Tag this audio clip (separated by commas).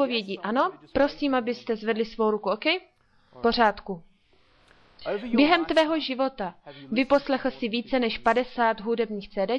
Speech